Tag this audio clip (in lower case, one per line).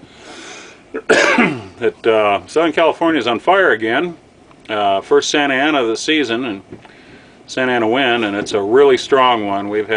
speech